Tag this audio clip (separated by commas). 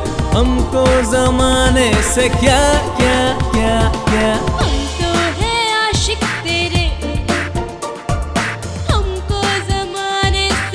Music of Bollywood, Music